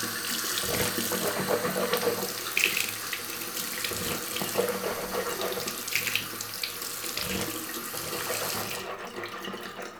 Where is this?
in a restroom